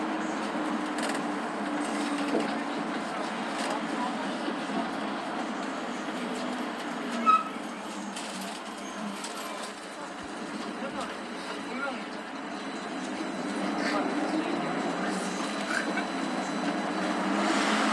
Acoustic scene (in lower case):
bus